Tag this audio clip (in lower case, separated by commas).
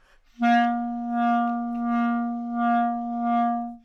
music, musical instrument, wind instrument